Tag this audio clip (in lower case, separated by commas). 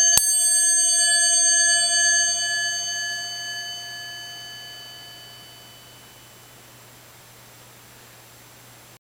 music